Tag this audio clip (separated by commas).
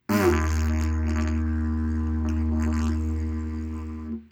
Musical instrument, Music